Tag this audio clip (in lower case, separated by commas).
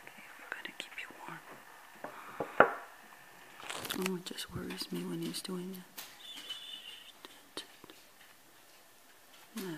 animal, speech, whispering